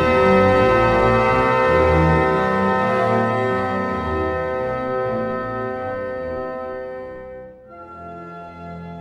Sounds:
Organ

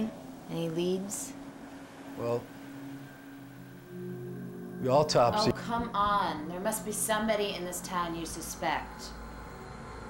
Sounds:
Speech

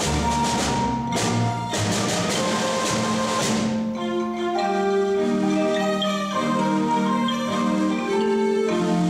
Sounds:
Glockenspiel, Mallet percussion, xylophone

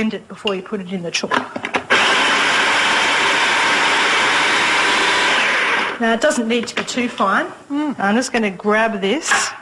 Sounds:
Speech

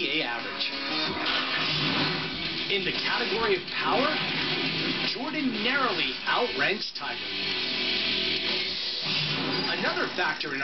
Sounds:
Speech, inside a small room, Music

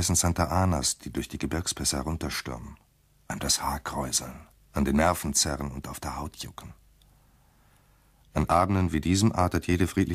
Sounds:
Speech

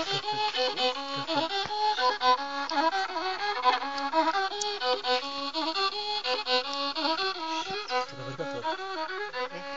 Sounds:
Music, Speech

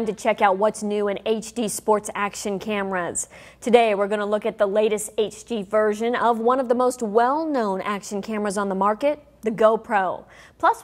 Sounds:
Speech

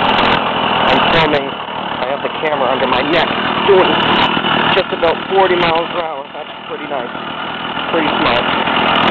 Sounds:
Vehicle, Engine, Speech, Motorcycle

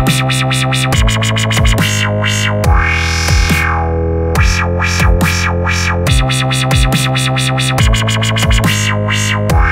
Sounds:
Music, Dubstep

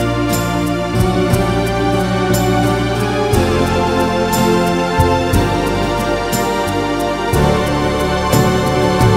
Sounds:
playing electronic organ

